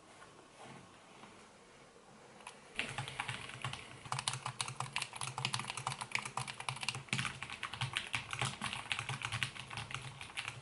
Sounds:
typing on computer keyboard

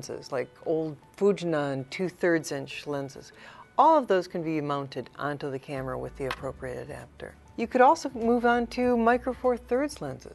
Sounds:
Speech

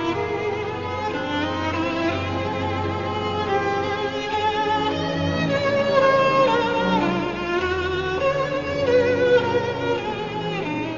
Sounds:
Musical instrument, fiddle, Music

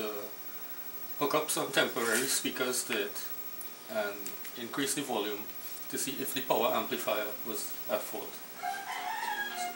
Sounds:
Speech

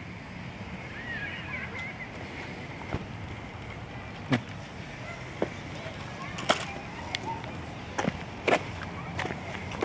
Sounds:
Speech

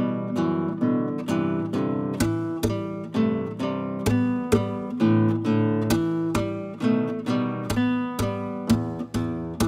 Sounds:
Musical instrument, Guitar, Music

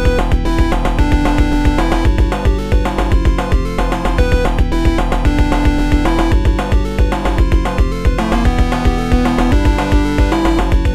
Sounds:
Theme music, Music

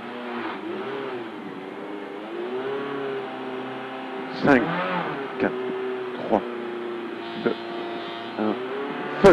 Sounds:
Speech, Vehicle, Car, vroom

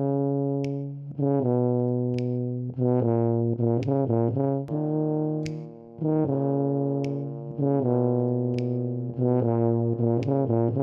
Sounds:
Trombone, Music

